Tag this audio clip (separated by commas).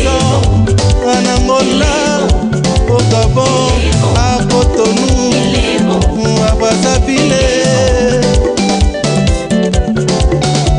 Music